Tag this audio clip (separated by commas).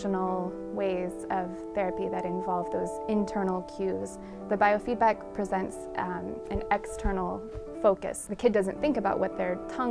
Speech, Female speech, monologue, Music